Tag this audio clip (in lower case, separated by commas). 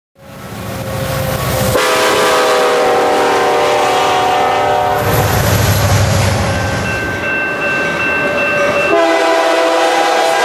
train horning